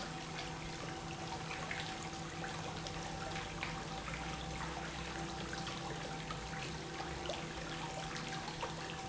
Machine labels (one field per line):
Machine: pump